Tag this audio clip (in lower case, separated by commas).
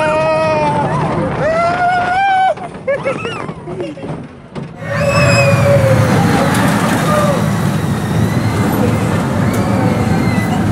roller coaster running